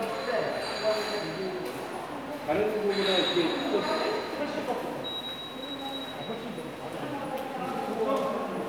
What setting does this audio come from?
subway station